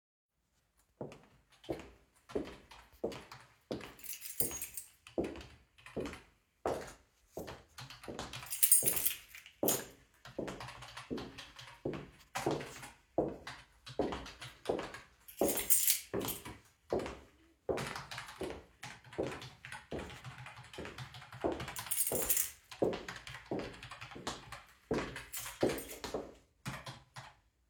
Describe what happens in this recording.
While my partner was typing on the keyboard, I impatiently walked up and down the room. I played with the keys in my hand and the keychain jingled.